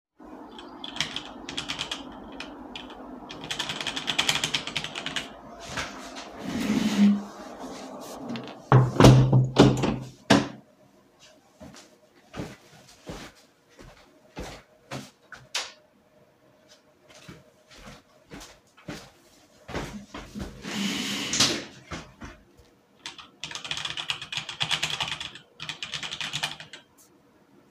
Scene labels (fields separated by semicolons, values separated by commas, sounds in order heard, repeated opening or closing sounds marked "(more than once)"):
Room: living room; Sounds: keyboard typing, window, footsteps, light switch